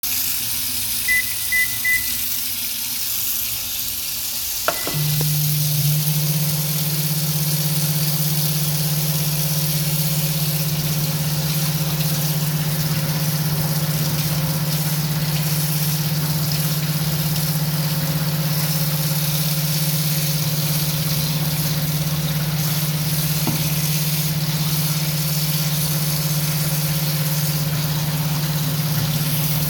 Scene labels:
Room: kitchen; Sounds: running water, microwave

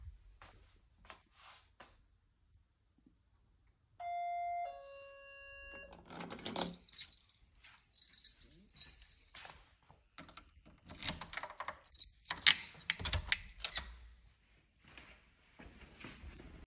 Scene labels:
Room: hallway; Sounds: footsteps, bell ringing, keys, door

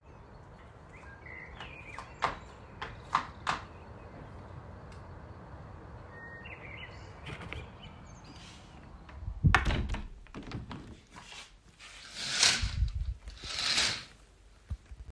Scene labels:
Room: hallway; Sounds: footsteps, window

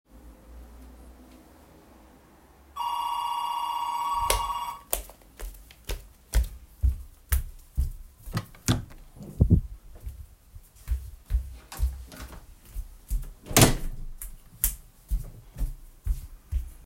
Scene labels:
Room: kitchen; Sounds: bell ringing, footsteps, door

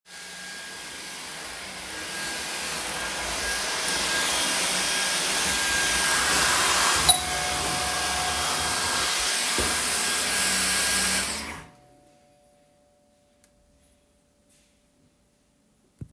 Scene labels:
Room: hallway; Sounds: vacuum cleaner, bell ringing

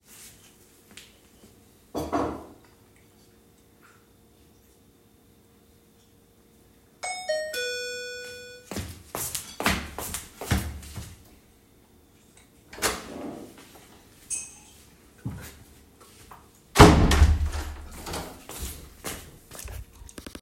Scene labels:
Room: living room; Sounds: cutlery and dishes, bell ringing, footsteps, door (more than once)

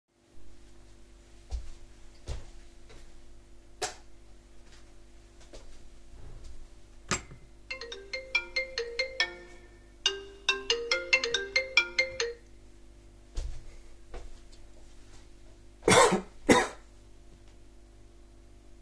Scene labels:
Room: kitchen; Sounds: footsteps, cutlery and dishes, phone ringing

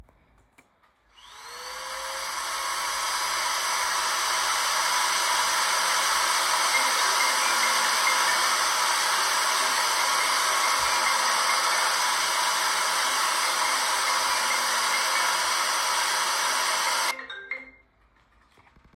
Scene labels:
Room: living room; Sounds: vacuum cleaner, phone ringing, bell ringing

